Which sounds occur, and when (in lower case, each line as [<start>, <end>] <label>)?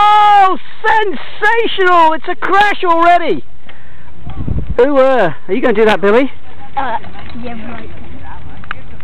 [0.00, 0.54] shout
[0.00, 0.57] man speaking
[0.00, 8.83] conversation
[0.00, 9.03] wind
[0.83, 1.15] man speaking
[1.34, 3.37] man speaking
[3.67, 3.73] tick
[3.72, 4.13] breathing
[4.21, 4.69] wind noise (microphone)
[4.24, 4.31] tick
[4.27, 4.51] child speech
[4.27, 9.03] bicycle
[4.75, 5.29] man speaking
[5.46, 5.53] tick
[5.47, 6.24] man speaking
[6.46, 7.82] child speech
[7.01, 7.07] tick
[7.24, 7.30] tick
[8.23, 8.57] child speech
[8.68, 8.73] tick